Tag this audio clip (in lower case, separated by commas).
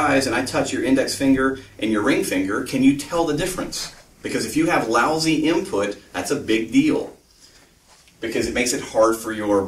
speech